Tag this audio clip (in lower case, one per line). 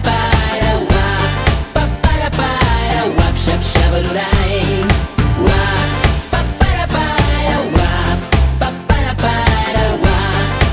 singing
music
pop music